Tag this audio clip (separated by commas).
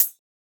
Music, Hi-hat, Percussion, Musical instrument, Cymbal